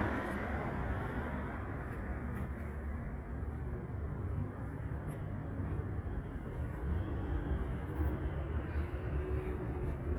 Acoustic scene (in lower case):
street